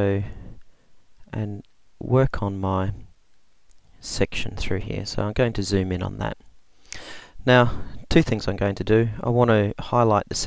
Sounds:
Speech

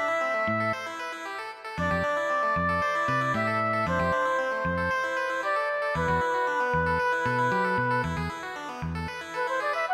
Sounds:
Music

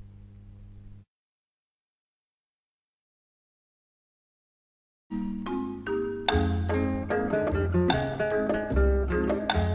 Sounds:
Music, Vibraphone, Wood block

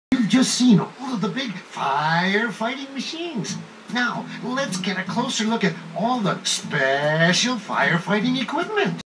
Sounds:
Speech, Music

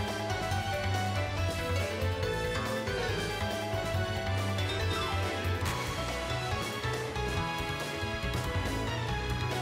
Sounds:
Music, Soundtrack music

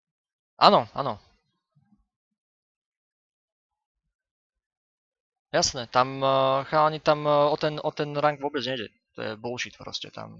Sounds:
Speech

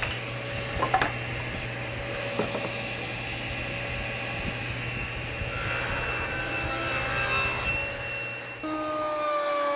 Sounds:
Wood, Sawing

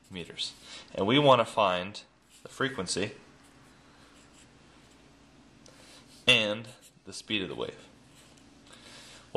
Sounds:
Speech

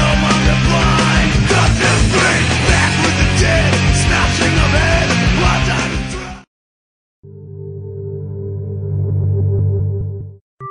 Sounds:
Music

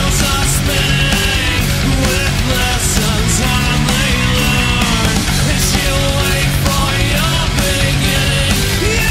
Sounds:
Music

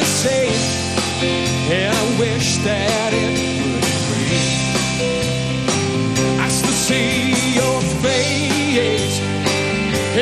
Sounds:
Music

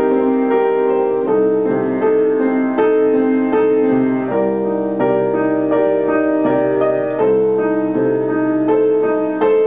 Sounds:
Keyboard (musical), Music, Piano, Musical instrument

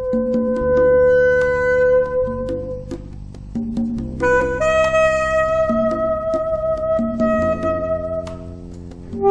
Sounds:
Music

